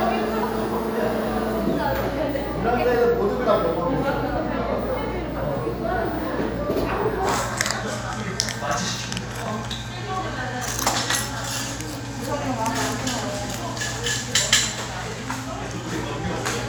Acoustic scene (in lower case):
cafe